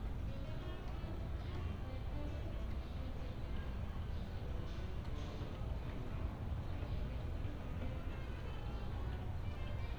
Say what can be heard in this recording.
music from a fixed source